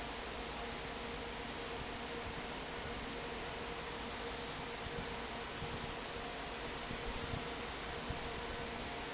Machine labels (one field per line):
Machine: fan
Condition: normal